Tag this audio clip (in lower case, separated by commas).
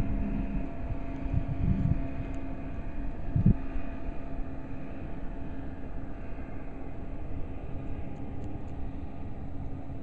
outside, rural or natural